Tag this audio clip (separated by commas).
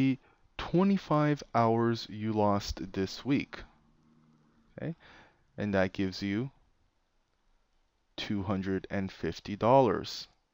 Speech